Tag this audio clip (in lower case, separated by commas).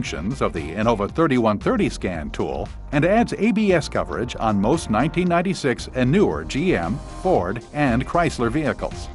speech, music